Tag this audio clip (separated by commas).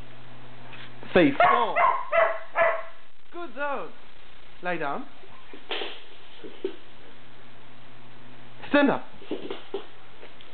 Bark, Speech, Domestic animals, Dog, Animal